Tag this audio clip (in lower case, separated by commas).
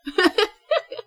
laughter, human voice